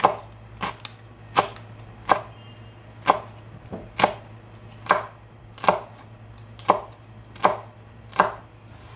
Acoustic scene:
kitchen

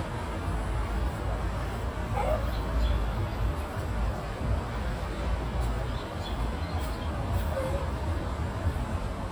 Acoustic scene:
park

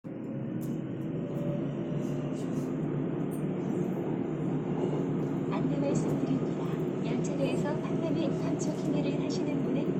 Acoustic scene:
subway train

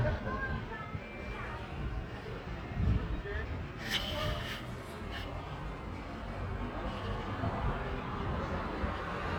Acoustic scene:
residential area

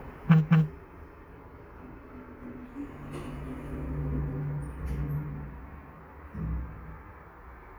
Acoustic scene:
elevator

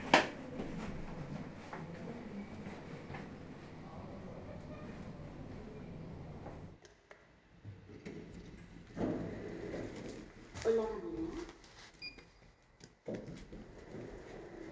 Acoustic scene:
elevator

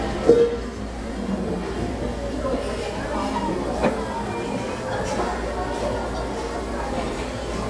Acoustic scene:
restaurant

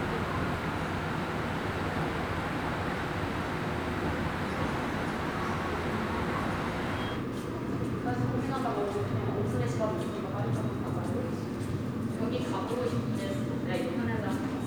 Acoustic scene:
subway station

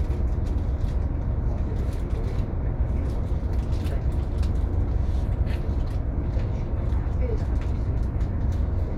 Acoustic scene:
bus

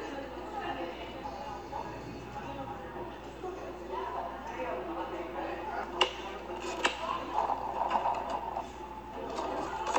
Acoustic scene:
cafe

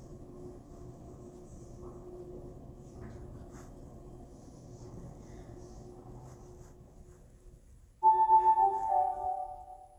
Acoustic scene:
elevator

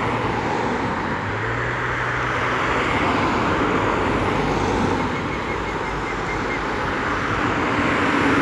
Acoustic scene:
street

